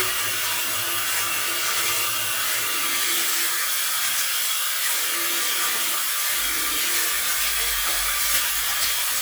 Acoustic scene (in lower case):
restroom